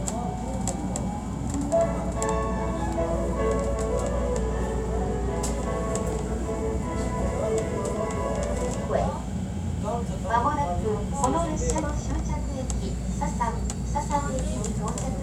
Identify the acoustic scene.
subway train